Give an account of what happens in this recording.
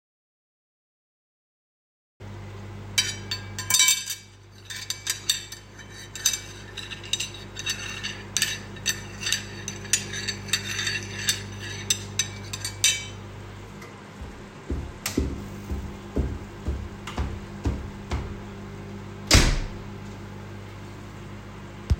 Prepare my plate and the utensils while my food is in the microwave, then leave to my room for water